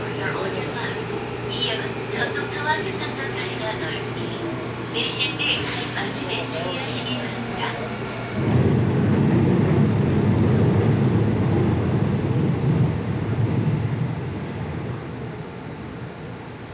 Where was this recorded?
on a subway train